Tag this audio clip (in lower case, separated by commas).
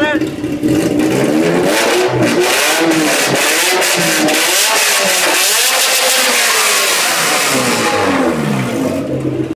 crackle